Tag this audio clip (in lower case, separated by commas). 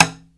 tap